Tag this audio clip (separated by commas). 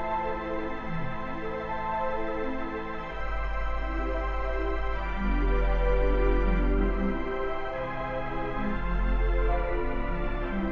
playing electronic organ